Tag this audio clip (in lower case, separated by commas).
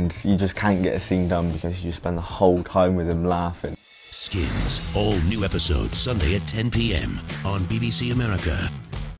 music, speech